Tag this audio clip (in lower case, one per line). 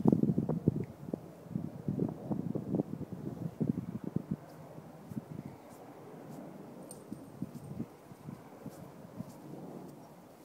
wind
wind noise (microphone)